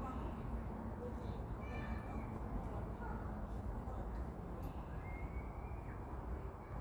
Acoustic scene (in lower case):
residential area